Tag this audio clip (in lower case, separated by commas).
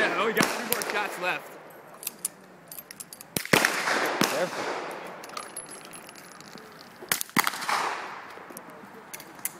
outside, urban or man-made, speech